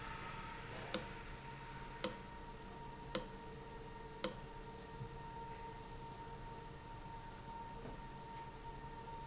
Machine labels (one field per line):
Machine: valve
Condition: abnormal